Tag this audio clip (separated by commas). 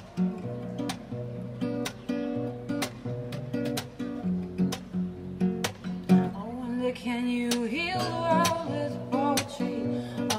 Music